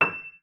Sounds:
music, musical instrument, keyboard (musical), piano

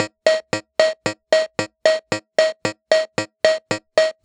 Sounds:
musical instrument, keyboard (musical), music

